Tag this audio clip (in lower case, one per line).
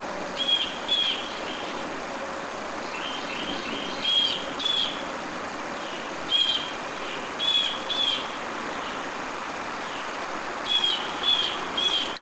animal
bird
wild animals
bird call